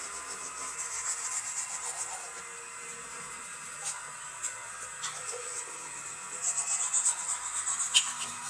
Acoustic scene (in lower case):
restroom